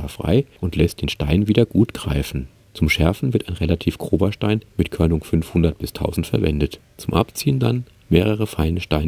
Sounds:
sharpen knife

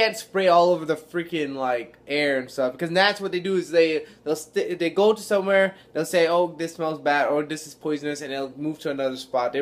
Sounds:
speech

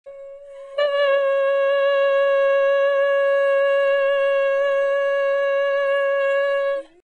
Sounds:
singing

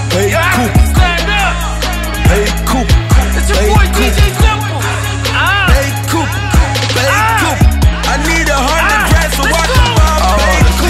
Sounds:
music
exciting music

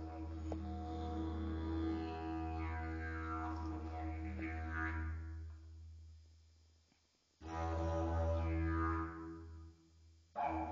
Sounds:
playing didgeridoo

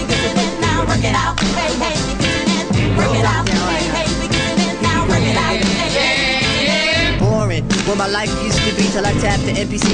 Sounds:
music

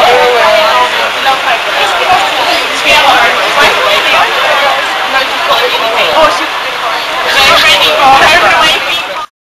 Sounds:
speech

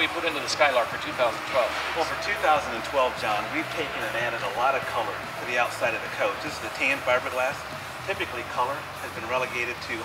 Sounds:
music
speech

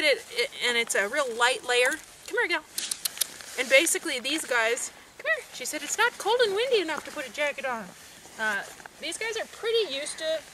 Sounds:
speech

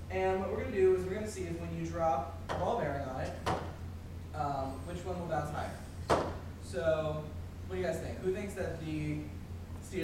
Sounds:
speech

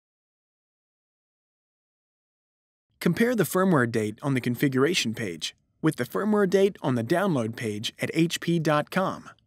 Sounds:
speech

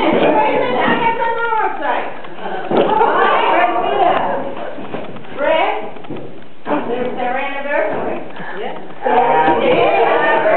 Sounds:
female speech
speech

